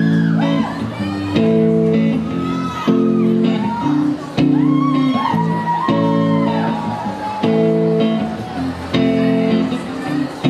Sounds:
music

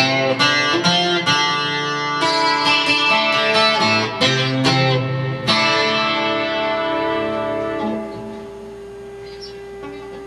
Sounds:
plucked string instrument, guitar, musical instrument, music, acoustic guitar

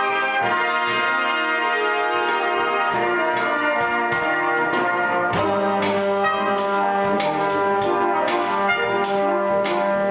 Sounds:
inside a large room or hall, music

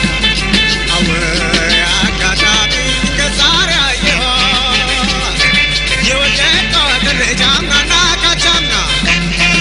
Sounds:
music

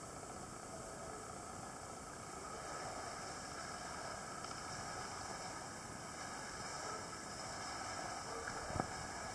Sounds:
scuba diving

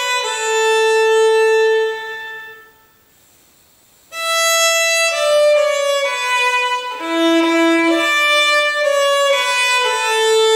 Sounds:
musical instrument, music, fiddle

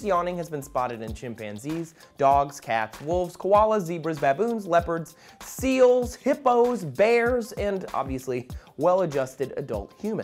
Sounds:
speech, music

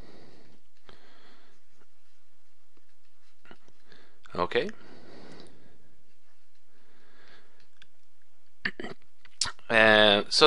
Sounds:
speech

